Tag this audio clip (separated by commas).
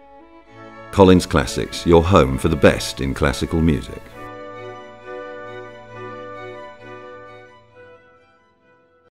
Speech, Music, Classical music, Background music